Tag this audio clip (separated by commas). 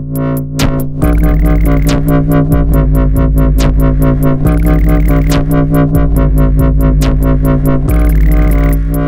Music, Dubstep